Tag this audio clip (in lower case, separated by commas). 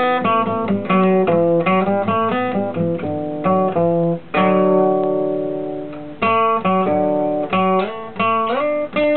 plucked string instrument, guitar, musical instrument, acoustic guitar, music